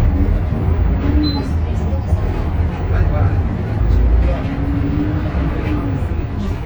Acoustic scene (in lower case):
bus